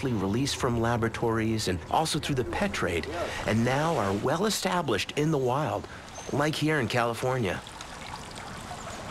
A soft voice male voice narrates as water trickles and gurgles in the background while male voices converse in whispers